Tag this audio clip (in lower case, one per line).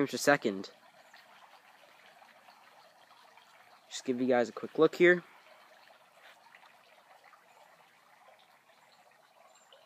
outside, urban or man-made
speech